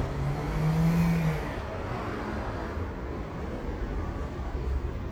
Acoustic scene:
street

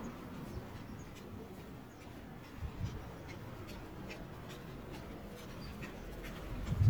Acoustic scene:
residential area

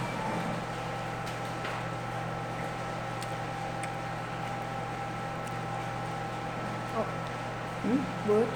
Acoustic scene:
cafe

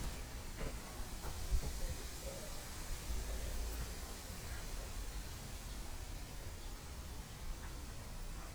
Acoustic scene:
park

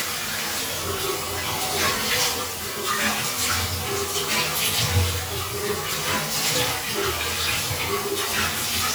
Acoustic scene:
restroom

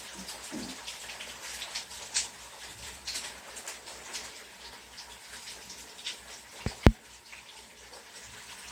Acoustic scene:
restroom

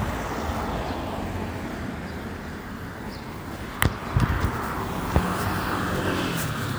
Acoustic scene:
residential area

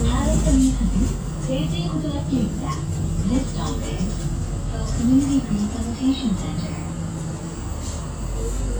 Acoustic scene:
bus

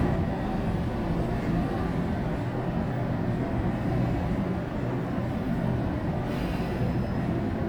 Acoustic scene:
bus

